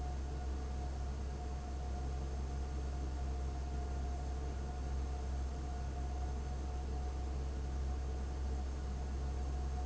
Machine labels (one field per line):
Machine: fan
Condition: abnormal